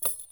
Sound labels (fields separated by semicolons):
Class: object falling; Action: being thrown; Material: metal